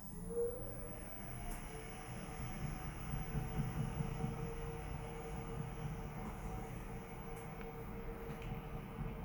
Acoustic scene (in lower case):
elevator